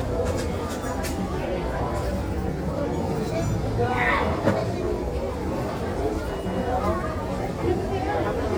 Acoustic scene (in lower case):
crowded indoor space